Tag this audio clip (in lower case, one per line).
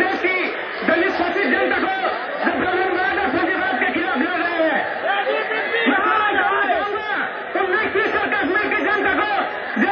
speech
man speaking
monologue